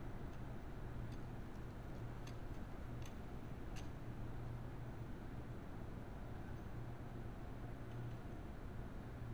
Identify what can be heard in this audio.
background noise